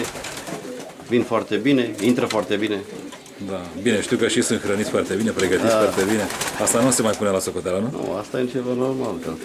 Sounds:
Bird, inside a small room, Pigeon, Speech

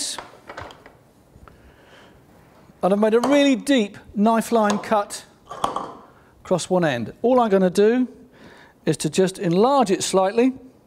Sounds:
Speech

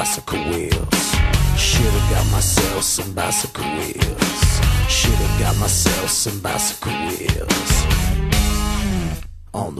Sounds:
Music

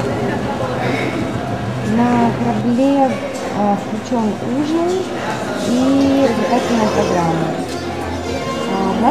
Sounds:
Music, Speech

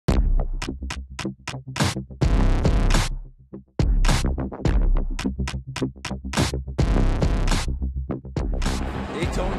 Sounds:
Speech, Music, Drum machine

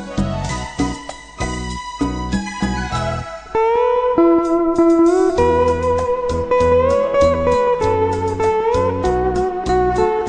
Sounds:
Music, Musical instrument

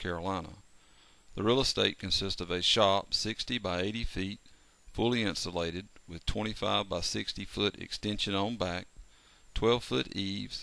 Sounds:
Speech

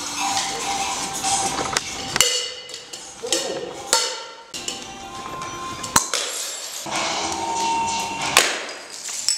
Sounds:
Ping, Music

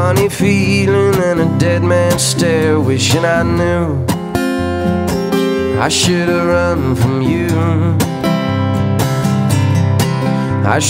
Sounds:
Music

